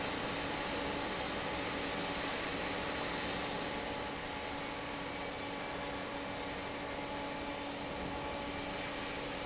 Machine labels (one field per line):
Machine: fan